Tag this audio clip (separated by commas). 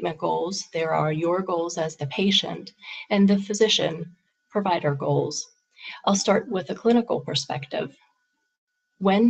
monologue